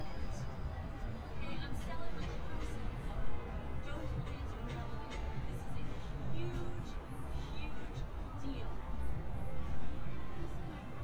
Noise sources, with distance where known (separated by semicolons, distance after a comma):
person or small group talking, far